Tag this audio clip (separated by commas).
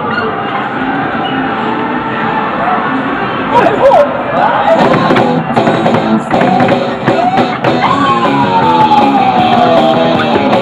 Speech, Music